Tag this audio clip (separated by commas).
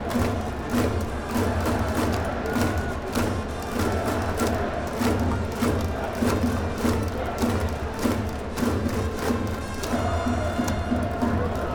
Human group actions, Crowd